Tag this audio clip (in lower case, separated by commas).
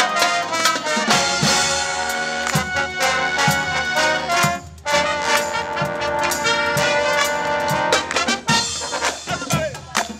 music, speech